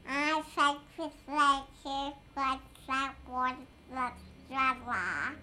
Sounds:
human voice
speech

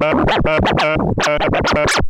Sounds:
music
musical instrument
scratching (performance technique)

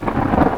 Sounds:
thunder
thunderstorm

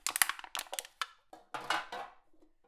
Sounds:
crushing

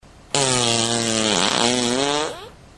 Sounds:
fart

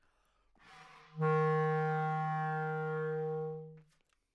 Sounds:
musical instrument
music
wind instrument

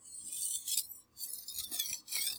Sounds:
domestic sounds
silverware

